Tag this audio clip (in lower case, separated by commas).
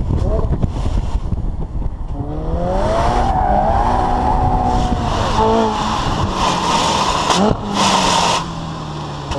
accelerating, car, vehicle